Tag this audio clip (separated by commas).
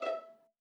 Music, Bowed string instrument, Musical instrument